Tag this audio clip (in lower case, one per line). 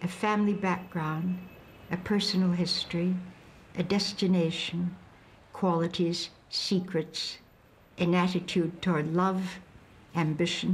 speech